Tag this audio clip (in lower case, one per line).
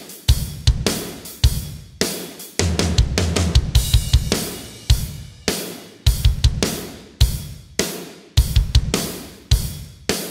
music